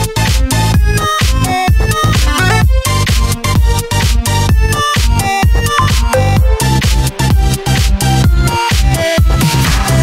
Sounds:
music
dubstep

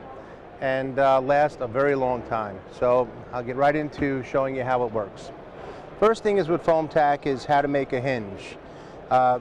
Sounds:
speech

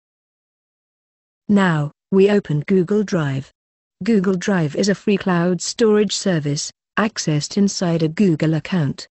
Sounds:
speech

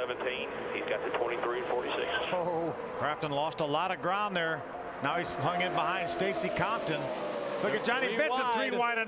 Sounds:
speech
car
vehicle

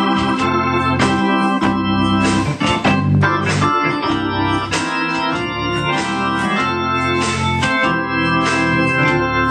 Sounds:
hammond organ
organ
electric piano
music
piano
keyboard (musical)
musical instrument

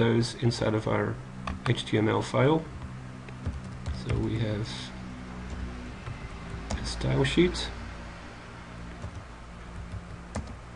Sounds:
speech

